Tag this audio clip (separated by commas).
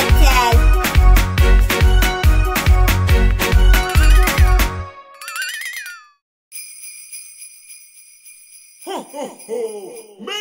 Music